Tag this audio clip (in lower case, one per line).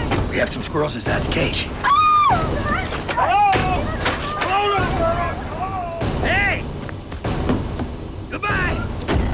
speech
music